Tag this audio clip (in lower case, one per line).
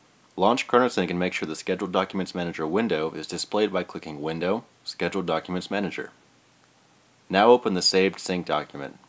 speech